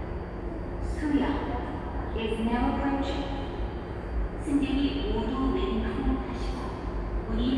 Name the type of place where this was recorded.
subway station